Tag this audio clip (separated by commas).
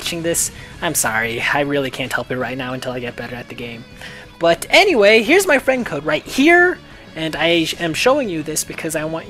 Music, Speech